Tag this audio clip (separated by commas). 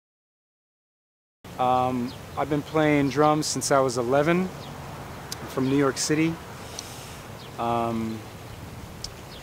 Speech